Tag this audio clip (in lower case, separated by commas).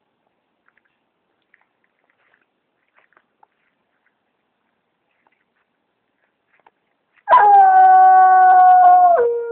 dog baying